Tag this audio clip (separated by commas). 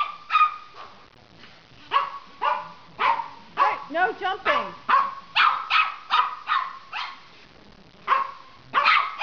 Dog, Speech, pets, Animal, Bark